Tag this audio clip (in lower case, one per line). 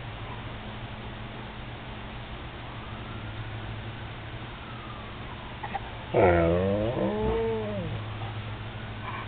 emergency vehicle
police car (siren)
siren